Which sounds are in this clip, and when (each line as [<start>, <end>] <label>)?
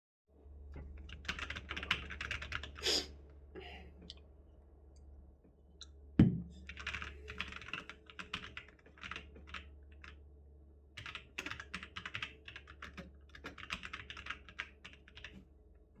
[1.22, 2.70] keyboard typing
[6.65, 10.18] keyboard typing
[10.96, 15.41] keyboard typing